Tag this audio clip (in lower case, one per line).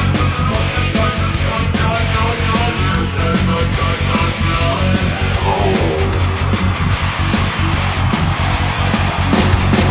musical instrument
acoustic guitar
plucked string instrument
guitar
music